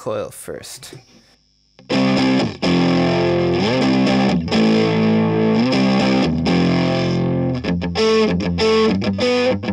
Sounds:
guitar, distortion, effects unit, music

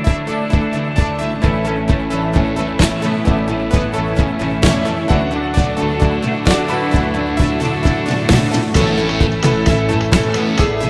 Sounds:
funk, music

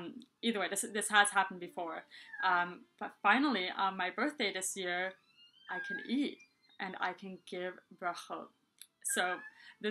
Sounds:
inside a small room, speech

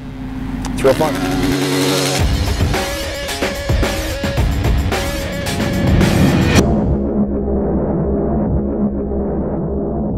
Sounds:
speech, music, vehicle, motorcycle

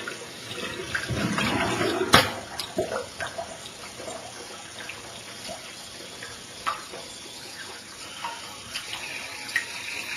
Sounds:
sink (filling or washing), faucet, water

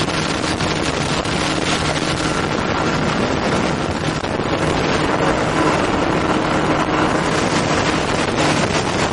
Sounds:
engine

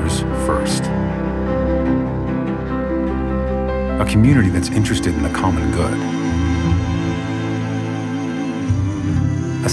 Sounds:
speech, music

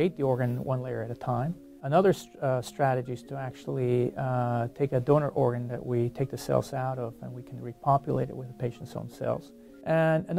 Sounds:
music, speech

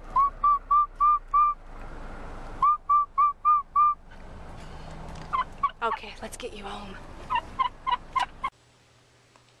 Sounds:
turkey gobbling

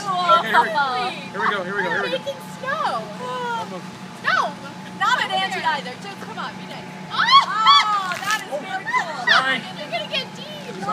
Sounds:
speech

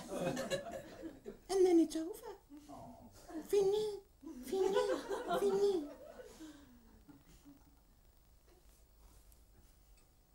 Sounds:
speech

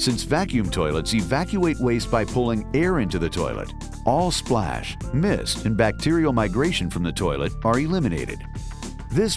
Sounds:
speech, music

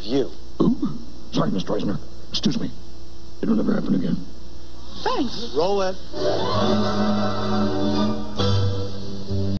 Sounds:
music, speech

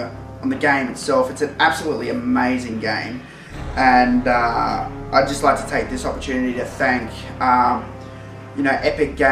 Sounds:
music, speech

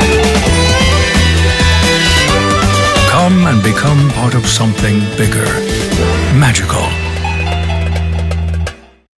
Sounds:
music, speech

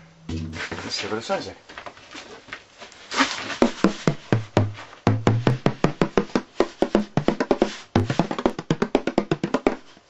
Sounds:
music, inside a small room, musical instrument, speech, drum

